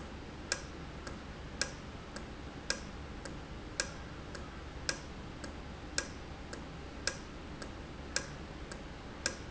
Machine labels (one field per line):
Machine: valve